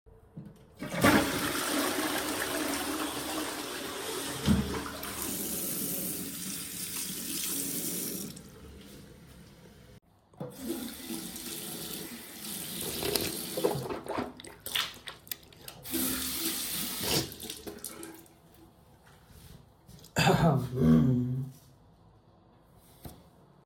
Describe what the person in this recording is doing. I was in the bathroom. I flushed the toilet, and then I ran the tap water to clean my hands and rinse my mouth thoroughly.